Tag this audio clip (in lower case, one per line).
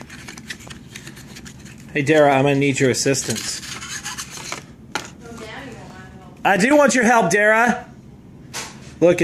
inside a small room
speech